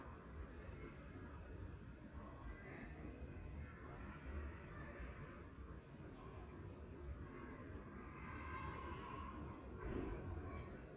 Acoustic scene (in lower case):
residential area